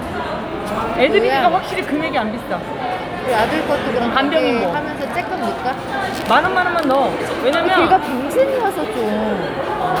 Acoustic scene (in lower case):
crowded indoor space